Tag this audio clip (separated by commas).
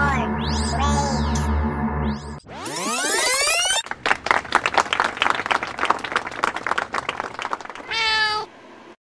Music, Animal